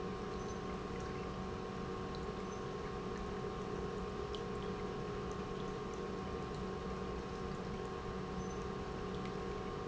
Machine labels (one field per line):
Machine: pump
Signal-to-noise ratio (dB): 0 dB